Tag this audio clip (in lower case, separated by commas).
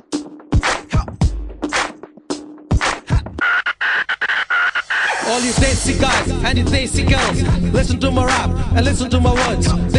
music, funk